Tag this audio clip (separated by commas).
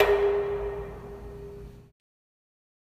Domestic sounds, dishes, pots and pans